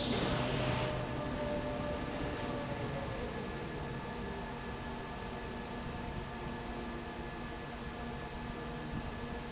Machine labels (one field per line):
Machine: fan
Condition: abnormal